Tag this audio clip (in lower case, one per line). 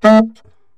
music
wind instrument
musical instrument